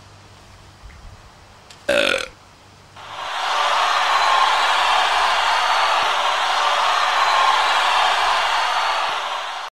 Burping and cheering